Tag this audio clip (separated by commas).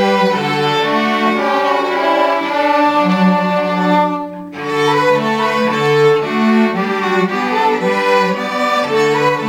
Music